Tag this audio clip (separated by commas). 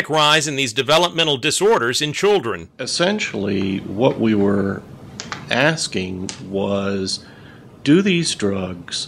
Speech